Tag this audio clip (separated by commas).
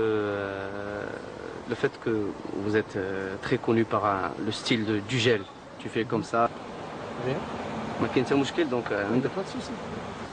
Speech